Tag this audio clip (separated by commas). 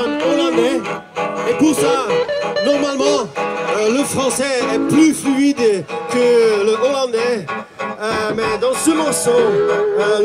Music, Speech